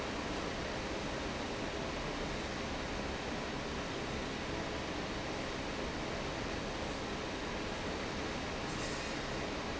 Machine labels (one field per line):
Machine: fan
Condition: normal